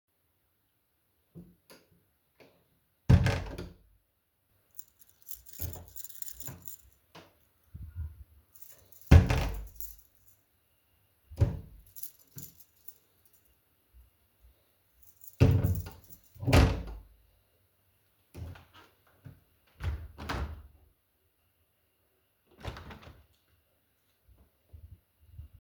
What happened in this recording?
I was looking for a pair of shoes in my wardrobe while my keys were swinging around. After that i closed the door to the living_room.